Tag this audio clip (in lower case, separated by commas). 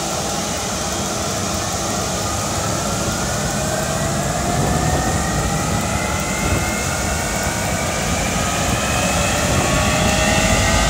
vehicle